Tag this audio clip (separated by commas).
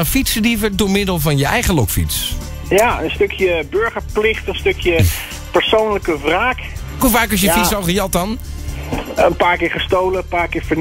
Speech, Music, Radio